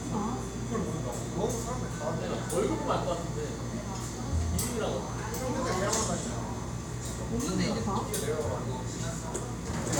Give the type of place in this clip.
cafe